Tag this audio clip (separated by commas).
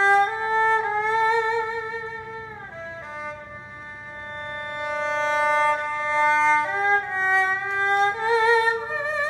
playing erhu